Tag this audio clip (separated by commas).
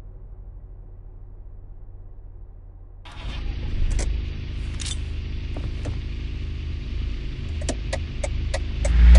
Car